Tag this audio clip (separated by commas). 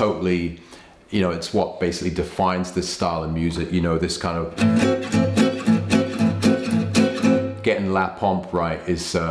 Music, Acoustic guitar, Guitar, Musical instrument, Plucked string instrument, Speech